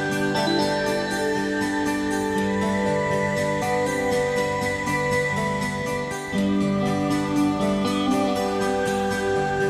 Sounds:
music

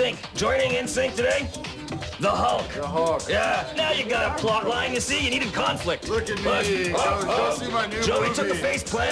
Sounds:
music, background music, speech

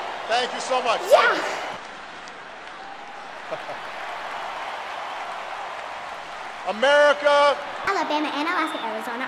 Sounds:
speech

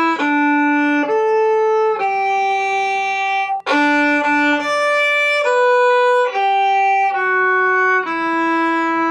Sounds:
bowed string instrument, violin

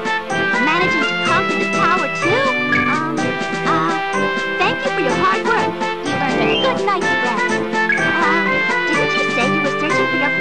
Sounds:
speech, music

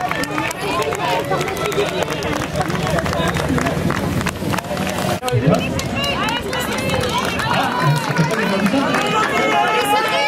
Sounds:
outside, urban or man-made, run, speech

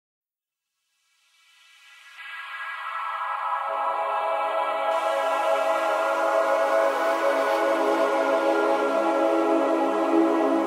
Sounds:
electronica

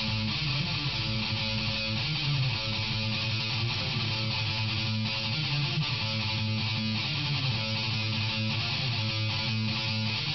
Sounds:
plucked string instrument, electric guitar, guitar, music, musical instrument

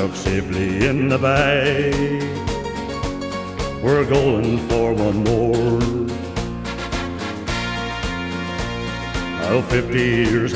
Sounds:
music, male singing

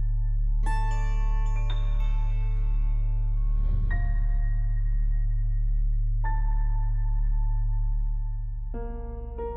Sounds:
music

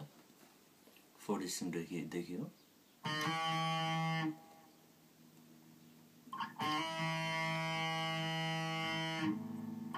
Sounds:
music, speech

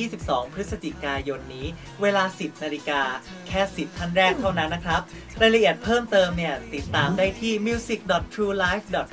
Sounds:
speech, music

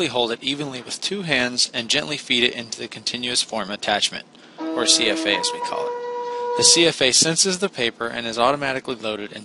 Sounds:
speech

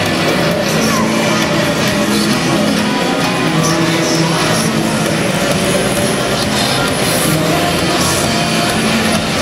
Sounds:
music

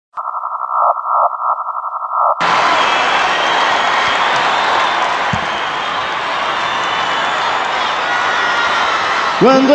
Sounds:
music, singing

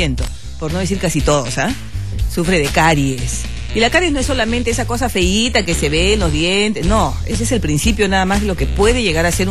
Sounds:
music, speech

